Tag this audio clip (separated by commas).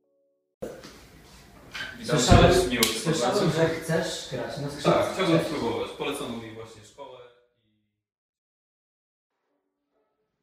Speech